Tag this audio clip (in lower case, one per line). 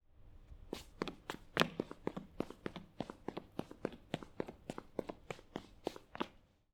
run